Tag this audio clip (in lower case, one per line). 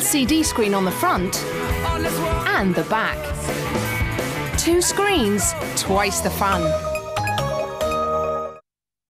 speech
music